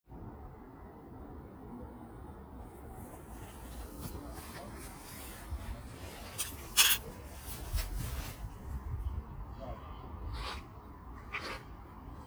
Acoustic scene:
park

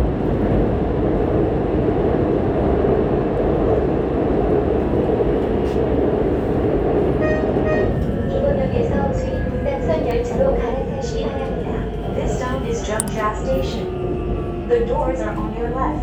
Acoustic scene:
subway train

